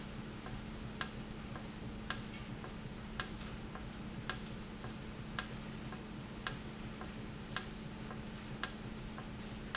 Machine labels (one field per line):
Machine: valve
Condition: normal